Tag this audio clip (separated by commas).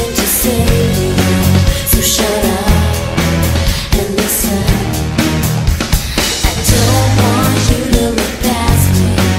Music